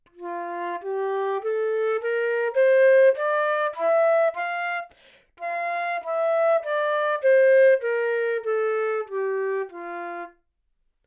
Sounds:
Music, woodwind instrument, Musical instrument

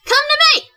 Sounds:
Speech, Human voice, woman speaking

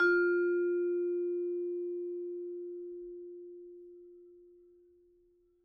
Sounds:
Percussion, Musical instrument, Mallet percussion, Music

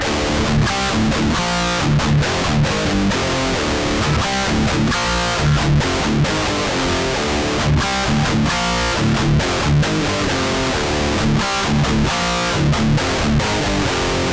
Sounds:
Guitar, Plucked string instrument, Music, Musical instrument

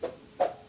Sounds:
swoosh

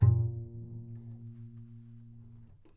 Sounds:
Bowed string instrument, Music, Musical instrument

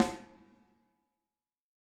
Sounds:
Percussion, Musical instrument, Drum, Music, Snare drum

